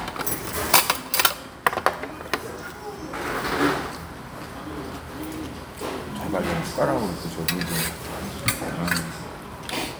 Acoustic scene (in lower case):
restaurant